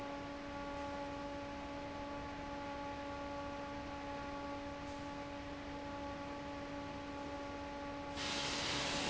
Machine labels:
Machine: fan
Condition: normal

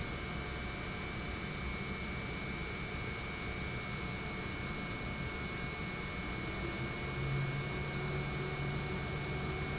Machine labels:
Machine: pump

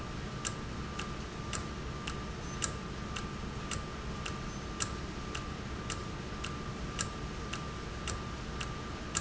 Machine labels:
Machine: valve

